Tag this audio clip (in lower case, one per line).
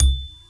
music
mallet percussion
marimba
musical instrument
wood
percussion